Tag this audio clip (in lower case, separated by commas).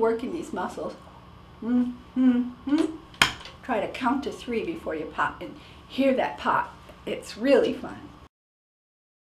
burst, speech